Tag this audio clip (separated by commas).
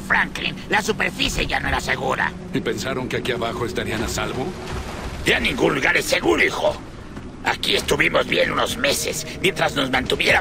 Speech